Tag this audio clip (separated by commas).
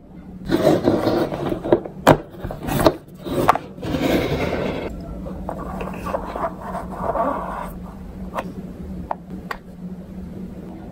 skateboarding